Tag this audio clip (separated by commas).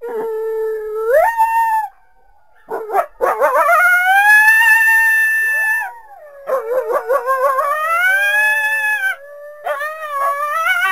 coyote howling